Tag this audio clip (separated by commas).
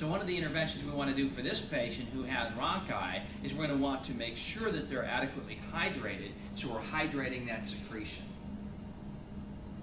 Speech